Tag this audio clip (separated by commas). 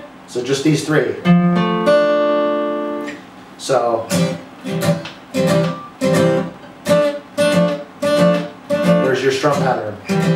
Speech, Plucked string instrument, Acoustic guitar, Music, Guitar, Strum, Musical instrument